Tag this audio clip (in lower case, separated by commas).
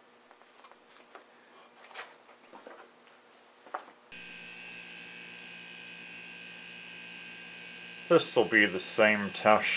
hum, mains hum